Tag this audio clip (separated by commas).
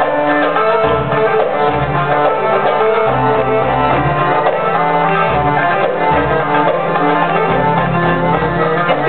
Speech, Music